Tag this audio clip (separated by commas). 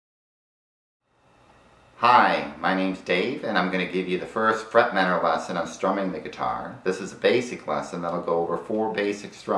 Speech